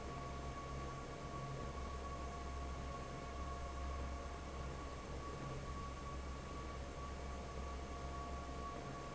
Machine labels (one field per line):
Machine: fan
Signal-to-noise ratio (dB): 6 dB